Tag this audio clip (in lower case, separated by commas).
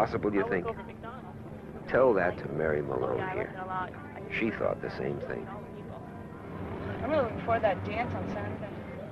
vehicle, bus, speech